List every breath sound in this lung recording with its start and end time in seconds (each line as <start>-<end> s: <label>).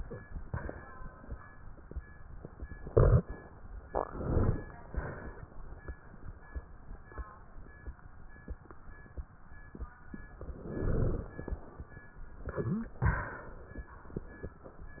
3.89-4.71 s: inhalation
4.93-5.43 s: exhalation
10.44-11.59 s: inhalation